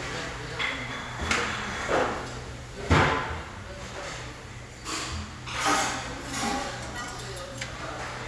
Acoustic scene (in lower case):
restaurant